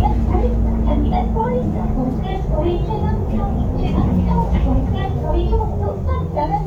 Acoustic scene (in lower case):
bus